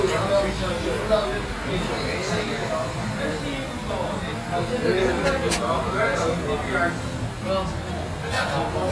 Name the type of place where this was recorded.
restaurant